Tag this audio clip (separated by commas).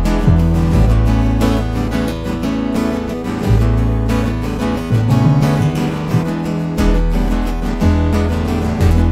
Music